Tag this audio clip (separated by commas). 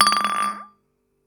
Glass